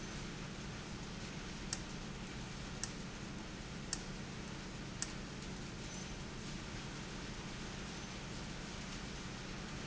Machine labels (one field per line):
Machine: valve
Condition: abnormal